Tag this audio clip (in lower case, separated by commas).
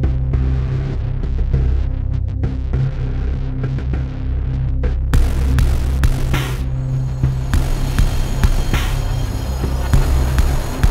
music